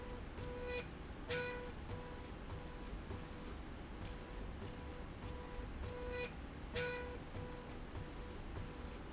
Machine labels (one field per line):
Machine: slide rail